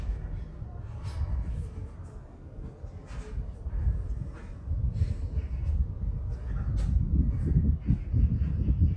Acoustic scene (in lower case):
residential area